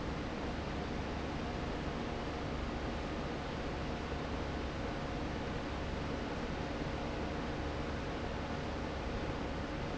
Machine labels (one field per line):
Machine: fan